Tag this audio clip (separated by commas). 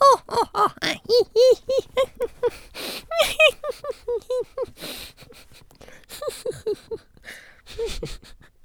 Human voice, Laughter